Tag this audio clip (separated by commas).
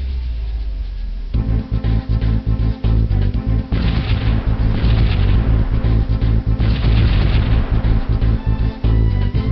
Music